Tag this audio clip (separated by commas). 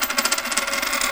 home sounds, Coin (dropping)